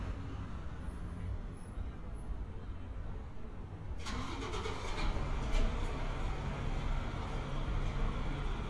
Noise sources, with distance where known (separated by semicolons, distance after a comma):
medium-sounding engine, near